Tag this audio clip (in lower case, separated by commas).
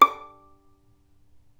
music, musical instrument, bowed string instrument